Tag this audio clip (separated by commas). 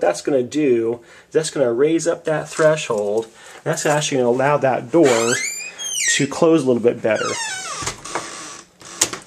Door, Speech